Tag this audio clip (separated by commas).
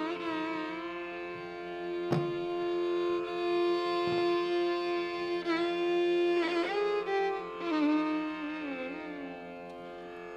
Violin, Music, Musical instrument